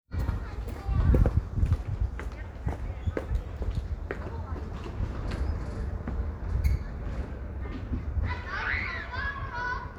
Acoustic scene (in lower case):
residential area